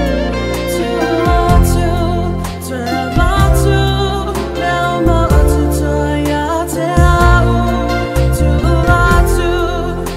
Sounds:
Music, Gospel music

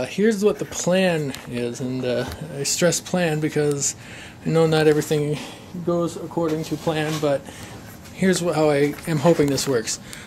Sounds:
Speech

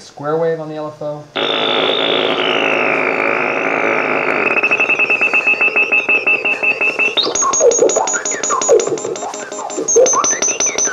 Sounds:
Music, Speech, Synthesizer, Musical instrument, Piano, Keyboard (musical)

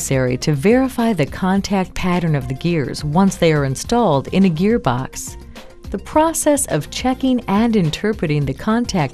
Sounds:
Music, Speech

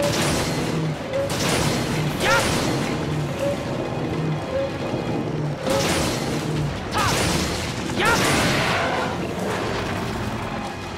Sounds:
Speech, Music

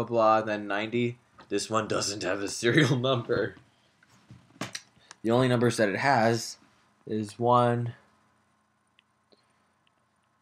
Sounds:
Speech

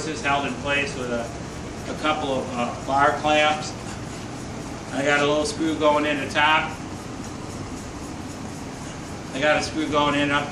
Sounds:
Speech

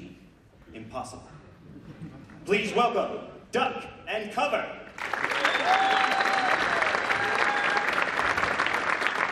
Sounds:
Speech

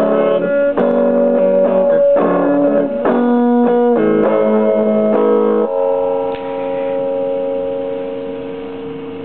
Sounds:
Guitar, Music, Musical instrument

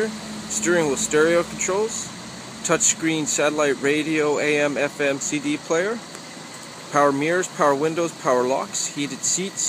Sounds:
Car, Speech, Vehicle

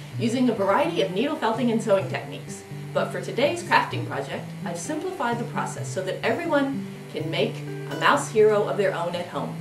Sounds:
Speech, Music

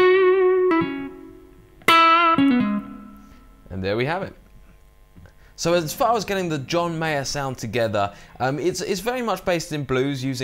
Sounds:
Musical instrument, Guitar, Plucked string instrument, Speech, Music

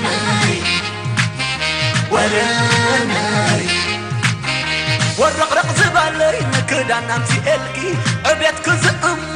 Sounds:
Rhythm and blues, Music, Soul music

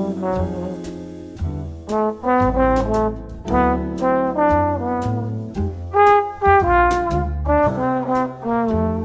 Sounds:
Trumpet, Music

